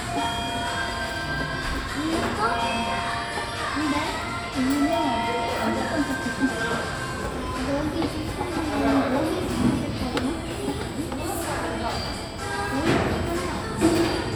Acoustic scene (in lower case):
cafe